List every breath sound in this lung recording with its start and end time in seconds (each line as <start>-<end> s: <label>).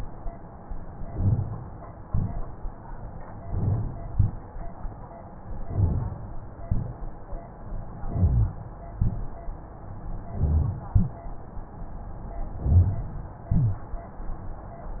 0.93-1.63 s: inhalation
2.01-2.71 s: exhalation
3.38-4.08 s: inhalation
4.10-4.83 s: exhalation
5.58-6.31 s: inhalation
5.64-6.19 s: crackles
6.65-7.49 s: exhalation
8.02-8.74 s: inhalation
8.95-9.79 s: exhalation
10.30-10.91 s: inhalation
10.92-11.53 s: exhalation
12.58-13.34 s: inhalation
13.47-14.23 s: exhalation